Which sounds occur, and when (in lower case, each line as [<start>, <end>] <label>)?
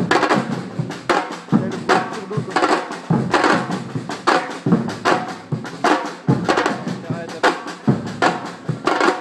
[0.00, 9.20] wind
[0.01, 9.20] music
[1.47, 1.82] male speech
[2.01, 2.40] male speech
[6.81, 7.41] male speech